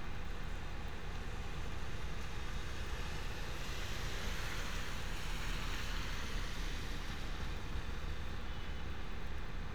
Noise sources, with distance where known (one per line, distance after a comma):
background noise